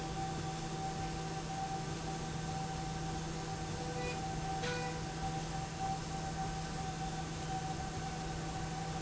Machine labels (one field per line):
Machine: slide rail